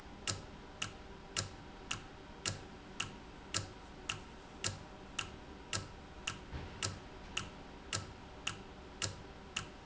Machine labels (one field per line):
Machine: valve